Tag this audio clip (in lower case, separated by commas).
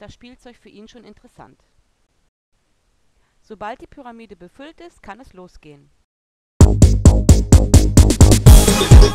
music, speech